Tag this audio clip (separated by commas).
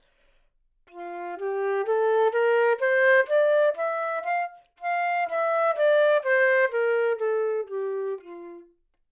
Wind instrument, Music, Musical instrument